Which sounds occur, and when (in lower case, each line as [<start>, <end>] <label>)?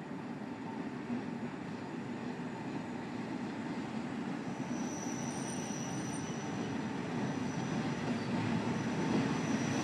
[0.00, 9.83] train
[4.42, 8.04] train wheels squealing
[8.44, 9.83] train wheels squealing